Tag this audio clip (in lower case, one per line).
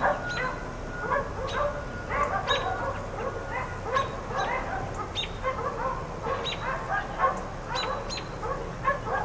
bark
animal
dog